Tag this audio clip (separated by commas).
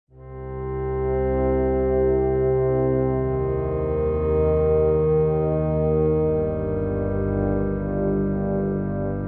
Music